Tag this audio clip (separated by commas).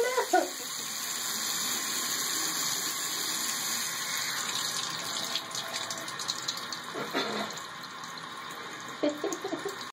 Water tap